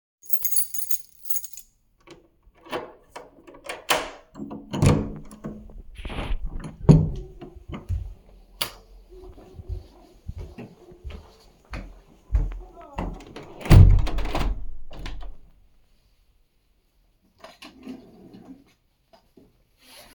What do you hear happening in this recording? I took out my keys, opened the door, turned on the light, walked to the table, closed the window, and sat down in a chair.